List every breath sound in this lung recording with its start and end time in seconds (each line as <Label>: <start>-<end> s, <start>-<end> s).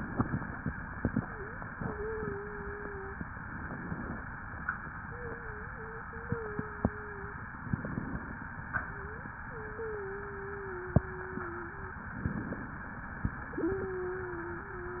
Inhalation: 3.45-4.21 s, 7.67-8.43 s, 12.18-12.94 s
Wheeze: 1.16-1.59 s, 1.73-3.22 s, 5.03-7.39 s, 8.90-9.33 s, 9.45-12.04 s, 13.45-15.00 s